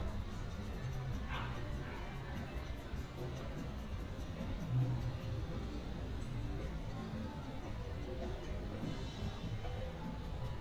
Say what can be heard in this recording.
dog barking or whining